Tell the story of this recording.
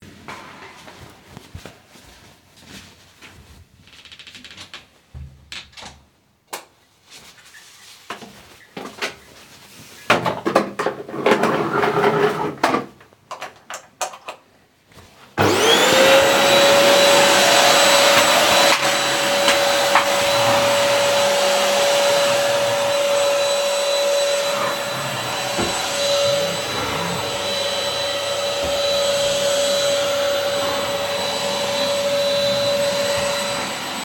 I close the door. In my anteroom/bathroom I turn on the light. I place the vacuum cleaner on the floor, plug in the vacuum cleaner and turn it on. My phone vibrates while vacuuming.